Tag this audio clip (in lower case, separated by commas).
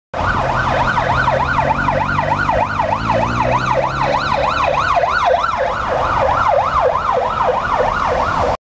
siren, ambulance (siren), emergency vehicle